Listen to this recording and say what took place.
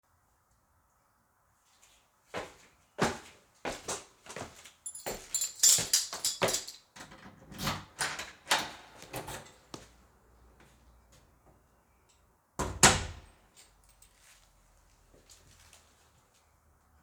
I walked toward the apartment door took my keys from my pocket unlocked the door and opened it before stepping outside.